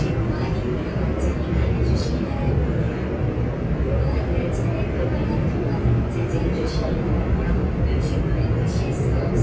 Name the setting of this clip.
subway train